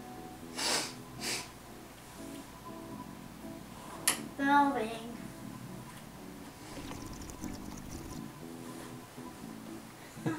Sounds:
Speech, inside a small room

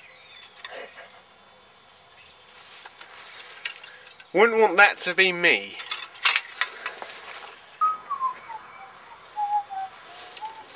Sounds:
Speech, Whistling, outside, rural or natural

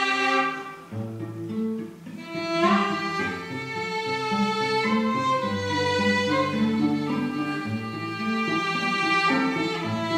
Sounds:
String section, Cello, Classical music, Orchestra, Bowed string instrument, fiddle, Music

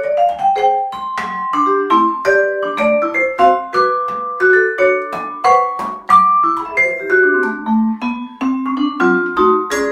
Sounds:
playing vibraphone

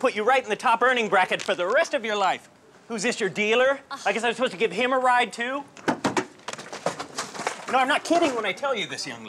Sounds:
Speech, outside, urban or man-made

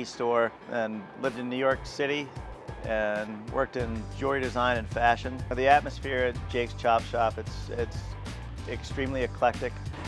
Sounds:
Music, Speech

